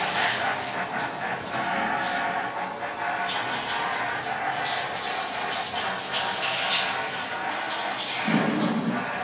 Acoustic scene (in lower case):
restroom